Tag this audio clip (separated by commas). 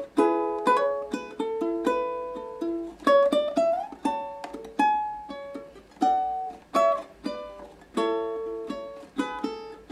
Plucked string instrument, Musical instrument, Guitar, Ukulele, Music